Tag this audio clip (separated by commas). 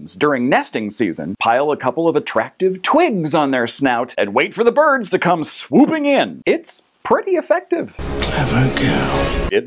Music, Speech